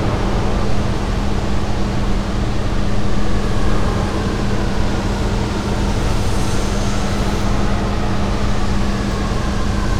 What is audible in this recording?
engine of unclear size, siren